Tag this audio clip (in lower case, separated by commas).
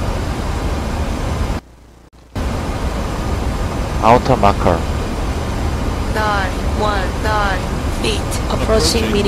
airplane